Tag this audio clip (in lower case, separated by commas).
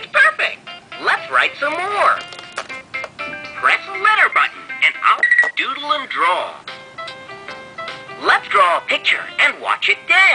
music, speech